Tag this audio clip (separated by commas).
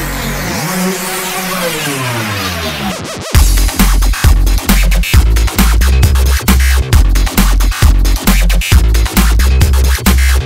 Drum and bass, Music